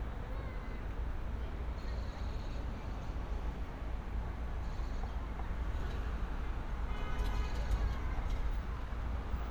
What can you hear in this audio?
car horn